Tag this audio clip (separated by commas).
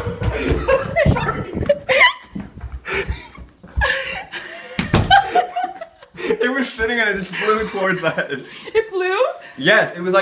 Speech